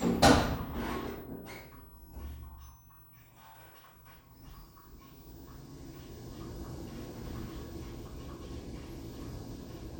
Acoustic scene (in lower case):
elevator